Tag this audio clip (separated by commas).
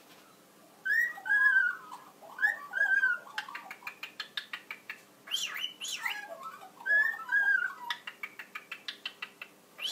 magpie calling